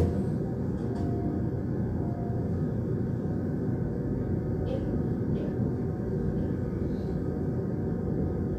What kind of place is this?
subway train